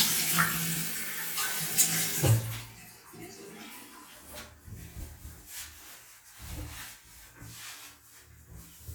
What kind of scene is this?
restroom